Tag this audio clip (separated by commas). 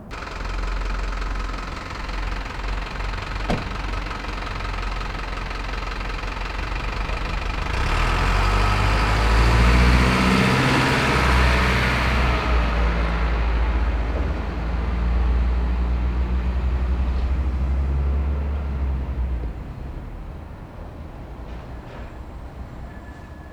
Motor vehicle (road), Engine, Truck, Idling, Vehicle